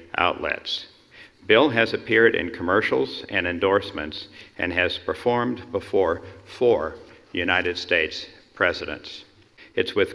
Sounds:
Speech, man speaking

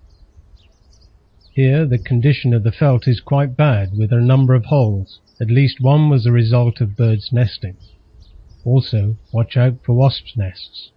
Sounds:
Speech

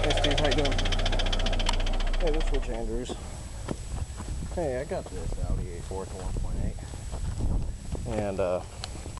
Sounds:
Engine, Speech, Vehicle

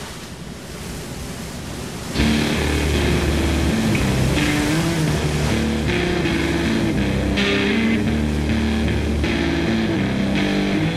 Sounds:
Music

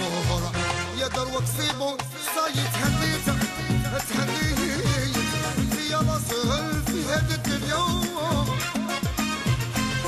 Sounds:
Music

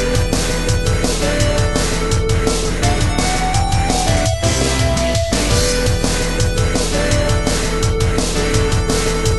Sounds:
Music

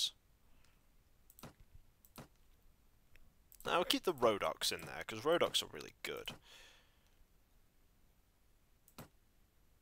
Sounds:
Speech, Clicking, inside a small room

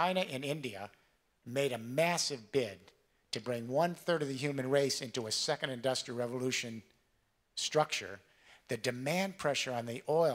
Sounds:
Speech, Male speech, Narration

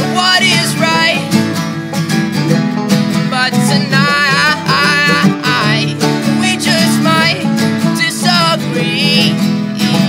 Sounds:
Music

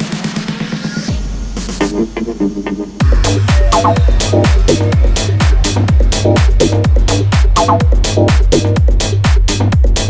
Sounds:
Electronica

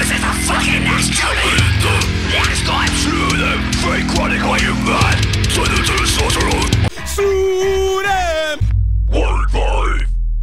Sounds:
Music, inside a small room

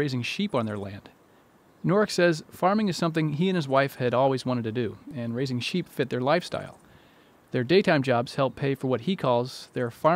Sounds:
Speech

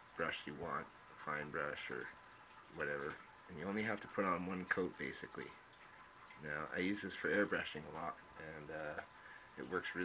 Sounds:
Speech

